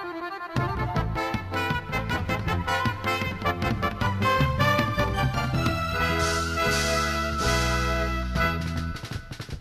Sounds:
music
musical instrument
drum kit
percussion
drum

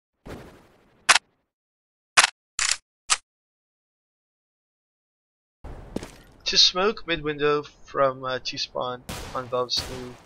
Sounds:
speech

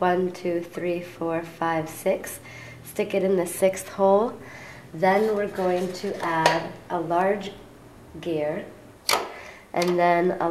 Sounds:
speech

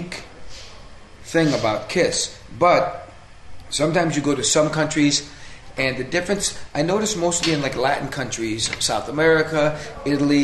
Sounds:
speech

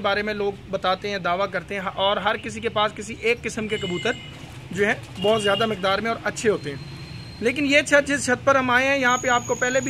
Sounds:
bird
speech
outside, urban or man-made

